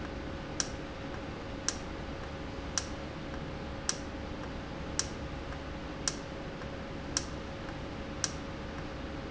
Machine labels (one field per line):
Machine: valve